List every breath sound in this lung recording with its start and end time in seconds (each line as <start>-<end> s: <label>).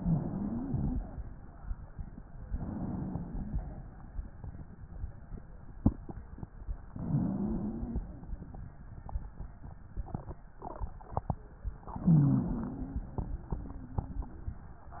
0.00-1.06 s: inhalation
0.00-1.06 s: wheeze
2.43-3.63 s: inhalation
2.43-3.63 s: wheeze
6.96-8.03 s: inhalation
6.96-8.03 s: wheeze
11.99-13.05 s: inhalation
11.99-13.05 s: wheeze